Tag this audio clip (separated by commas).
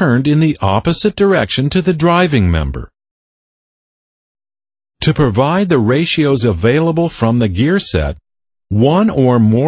Speech, Speech synthesizer